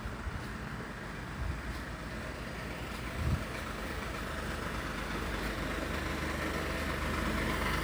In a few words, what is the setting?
residential area